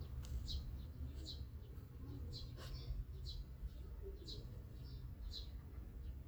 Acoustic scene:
park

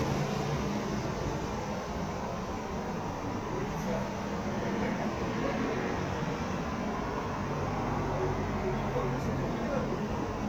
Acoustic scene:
street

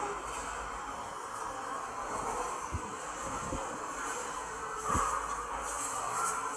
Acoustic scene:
subway station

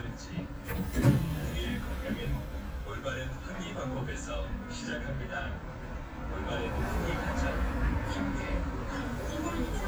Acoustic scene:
bus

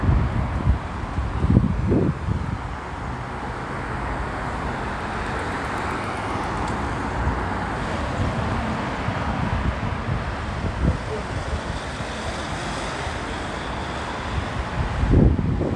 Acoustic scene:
street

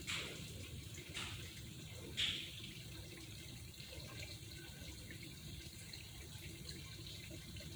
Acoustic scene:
park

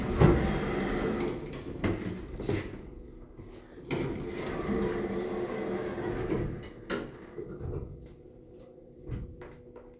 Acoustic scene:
elevator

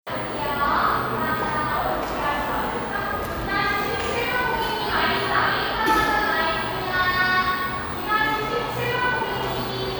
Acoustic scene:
cafe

